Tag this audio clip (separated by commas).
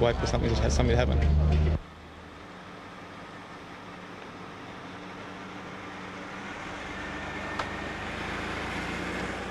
Vehicle, Speech